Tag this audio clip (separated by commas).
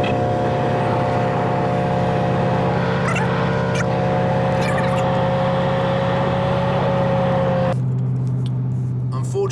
Vehicle, Car